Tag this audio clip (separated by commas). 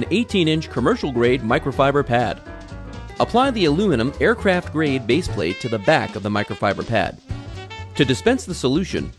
Music, Speech